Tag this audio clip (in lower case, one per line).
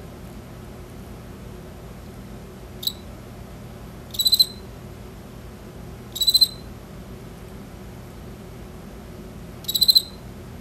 cricket chirping